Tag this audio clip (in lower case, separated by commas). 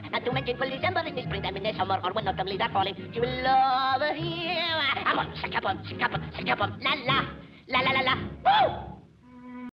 music, speech